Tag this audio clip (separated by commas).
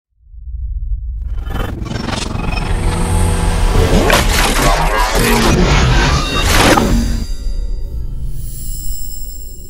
Music